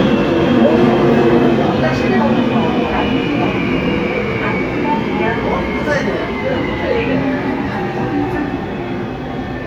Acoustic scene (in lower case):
subway train